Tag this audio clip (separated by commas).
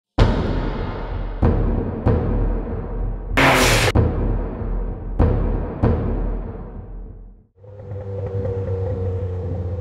Vehicle, Timpani, Music, Car